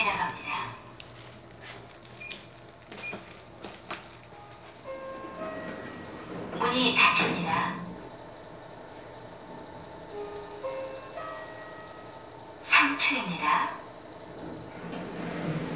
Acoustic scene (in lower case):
elevator